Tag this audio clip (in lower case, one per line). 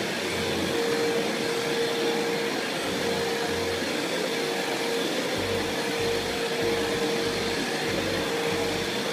vacuum cleaner cleaning floors